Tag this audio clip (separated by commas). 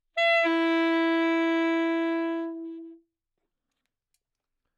Musical instrument, Music, Wind instrument